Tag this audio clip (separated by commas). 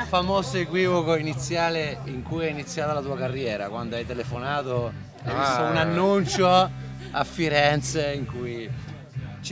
Speech, Music